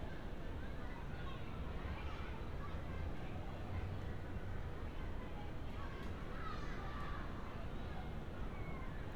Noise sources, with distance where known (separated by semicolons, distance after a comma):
person or small group shouting